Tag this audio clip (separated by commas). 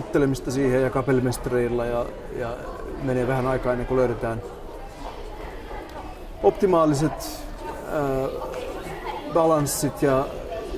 Speech